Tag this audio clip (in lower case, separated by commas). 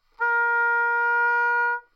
musical instrument, wind instrument, music